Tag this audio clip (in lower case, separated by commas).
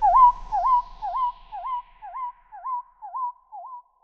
bird, animal, bird call, wild animals